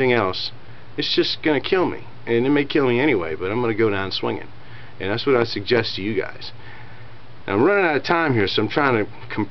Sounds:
speech, inside a large room or hall

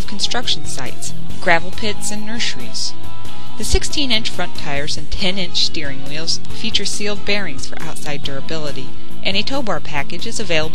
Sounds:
music, speech

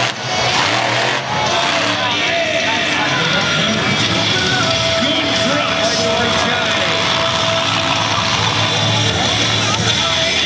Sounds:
music, speech, vehicle

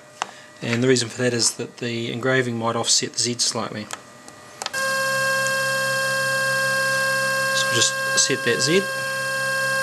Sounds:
speech, inside a small room

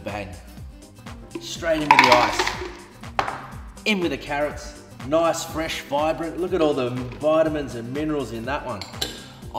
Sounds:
speech, music

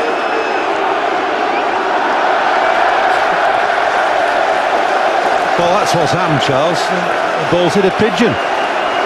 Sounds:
speech

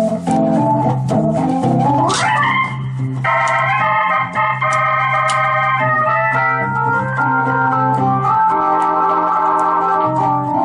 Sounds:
keyboard (musical), playing electronic organ, organ, piano, electric piano, electronic organ

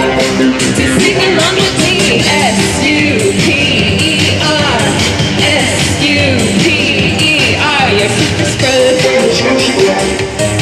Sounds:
inside a large room or hall, music

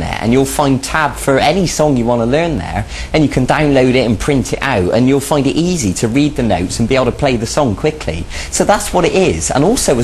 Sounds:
speech

